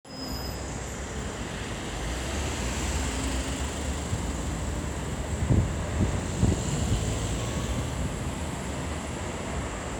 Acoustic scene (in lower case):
street